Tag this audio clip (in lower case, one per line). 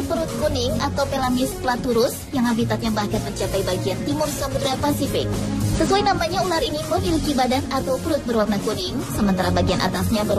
speech
music